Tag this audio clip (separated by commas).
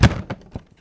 Thump